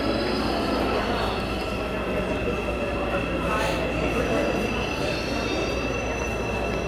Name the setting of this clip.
subway station